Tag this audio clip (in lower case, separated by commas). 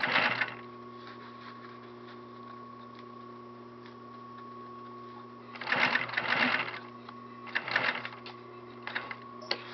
sewing machine, using sewing machines